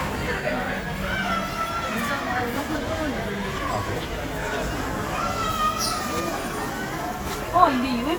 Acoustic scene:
crowded indoor space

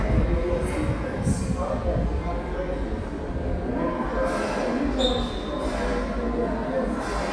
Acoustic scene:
subway station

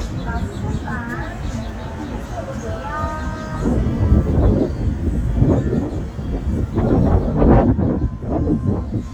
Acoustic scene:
street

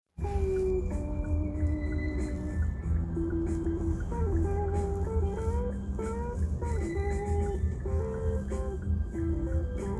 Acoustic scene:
car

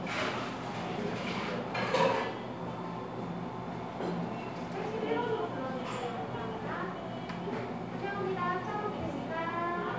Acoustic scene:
cafe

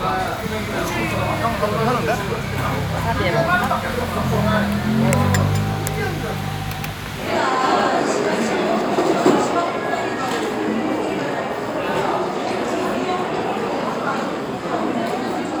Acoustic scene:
restaurant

